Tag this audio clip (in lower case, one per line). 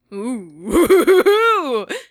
human voice
laughter